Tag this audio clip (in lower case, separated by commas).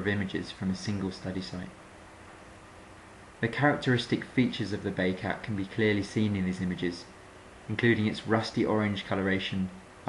speech